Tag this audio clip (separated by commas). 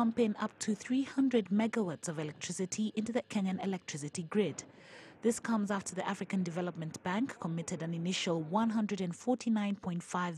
Speech